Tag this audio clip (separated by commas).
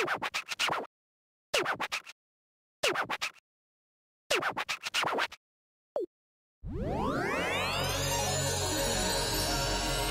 Music